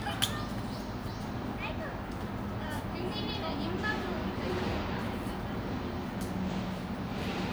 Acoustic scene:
park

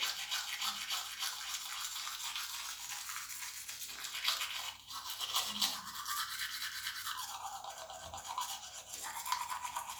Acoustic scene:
restroom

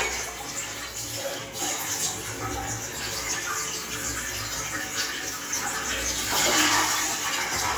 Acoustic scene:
restroom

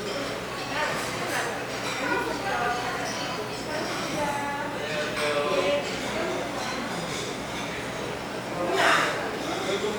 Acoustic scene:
restaurant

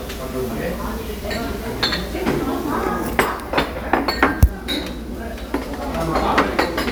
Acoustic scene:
restaurant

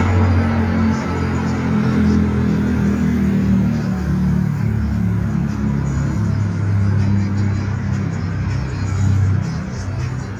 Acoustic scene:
street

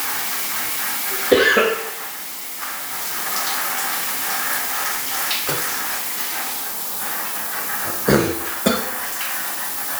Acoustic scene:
restroom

